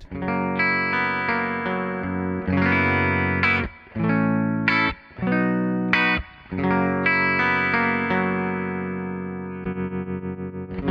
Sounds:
Music, Rock music, Effects unit, Guitar, Electric guitar, Distortion, Musical instrument

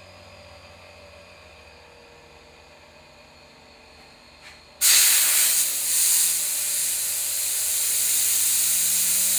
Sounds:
Tools, inside a small room

